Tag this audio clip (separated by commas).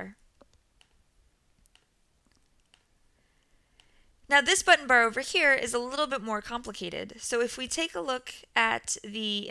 Speech, Clicking